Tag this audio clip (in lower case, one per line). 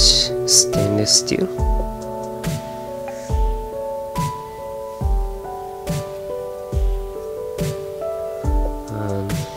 music
speech